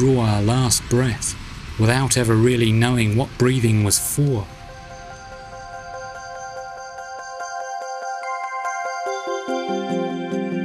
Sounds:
music, speech

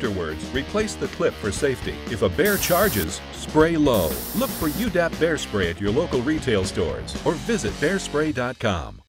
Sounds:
music, speech, spray

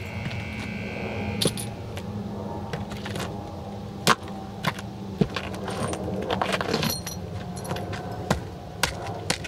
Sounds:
glass, outside, urban or man-made

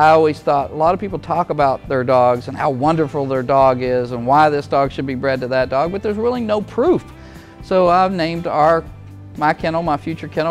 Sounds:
speech, music

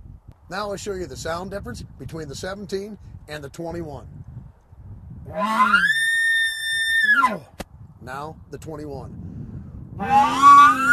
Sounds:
elk bugling

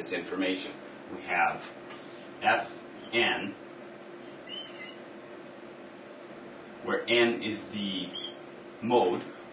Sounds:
speech, inside a small room

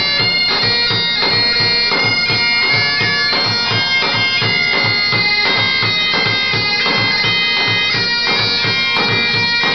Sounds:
bagpipes, woodwind instrument

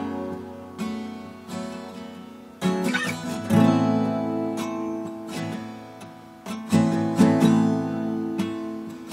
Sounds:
musical instrument, strum, guitar, music

